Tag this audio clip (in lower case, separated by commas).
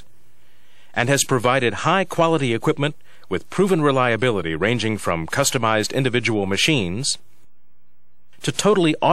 speech